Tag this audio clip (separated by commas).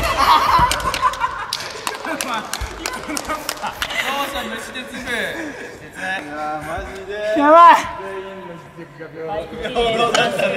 playing badminton